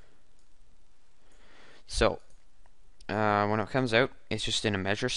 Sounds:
Speech

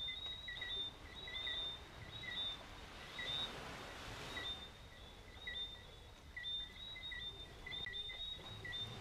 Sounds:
Bird

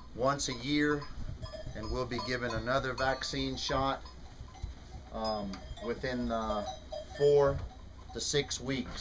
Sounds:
Speech

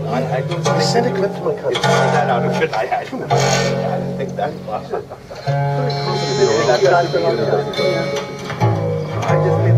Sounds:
Bowed string instrument, Musical instrument, inside a large room or hall, Speech, Music

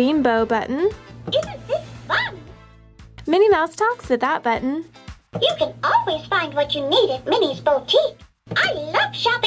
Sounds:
Speech, Music

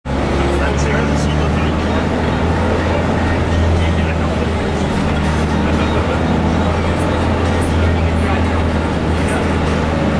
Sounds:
Speech, Music, Vehicle, Bus

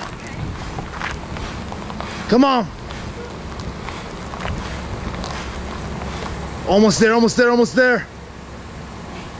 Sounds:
Speech

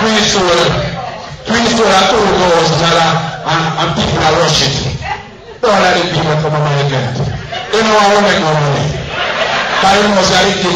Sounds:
Speech

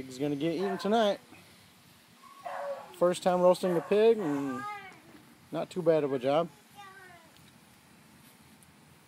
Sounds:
Speech

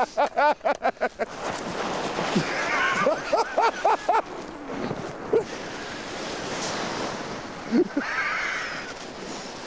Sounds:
skiing

